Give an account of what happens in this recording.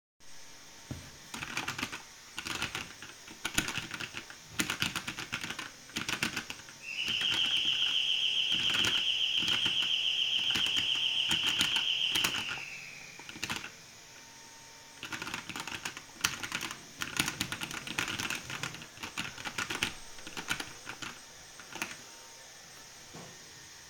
I was working on my computer, while the vacuum cleaner was working in another room. Someone also rang the door during the scene.